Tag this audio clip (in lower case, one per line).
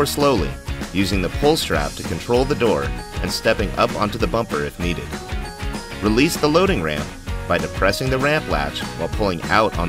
speech
music